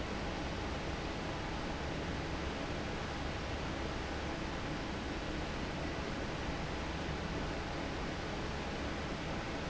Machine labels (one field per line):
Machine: fan